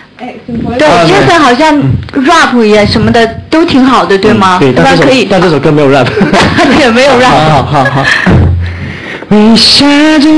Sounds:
Speech, Male singing

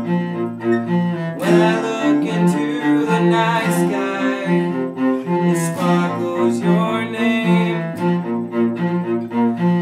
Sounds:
Musical instrument, Electric guitar, Plucked string instrument, Cello, Acoustic guitar, Guitar, Strum, Music

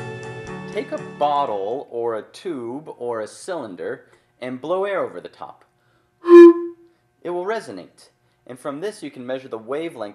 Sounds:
Speech, Music

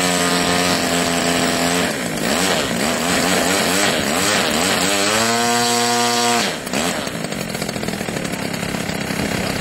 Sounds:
vroom, Speech, Engine

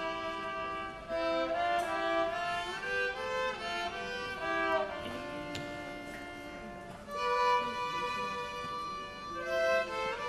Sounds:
Musical instrument, Violin, Music

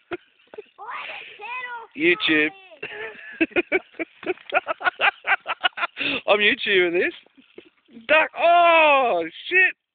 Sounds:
Speech

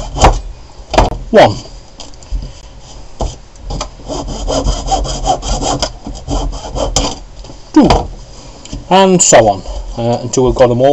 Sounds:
Speech

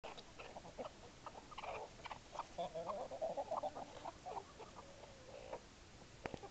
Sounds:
Animal

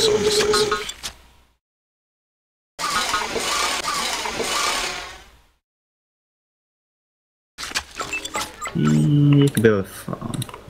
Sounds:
Music, Speech

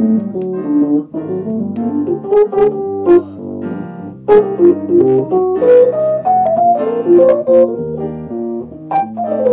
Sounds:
Electronic organ, Hammond organ, Organ

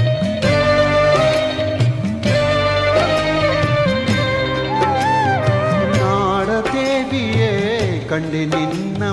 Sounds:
Music of Asia, Song, Folk music, Music

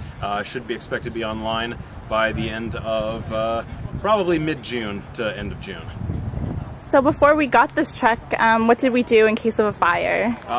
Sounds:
Speech

